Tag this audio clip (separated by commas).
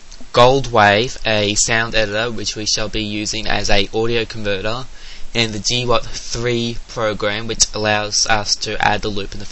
Speech